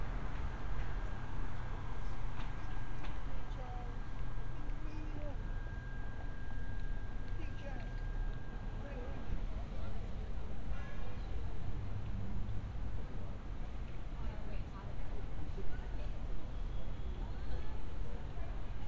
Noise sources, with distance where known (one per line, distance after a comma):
person or small group talking